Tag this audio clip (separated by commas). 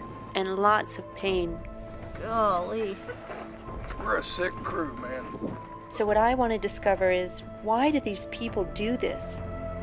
Music, Speech